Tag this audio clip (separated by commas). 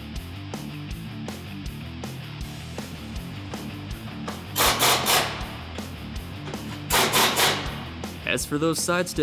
Speech, Music